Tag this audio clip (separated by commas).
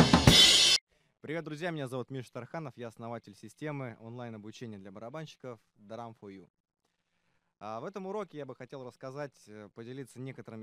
Music, Speech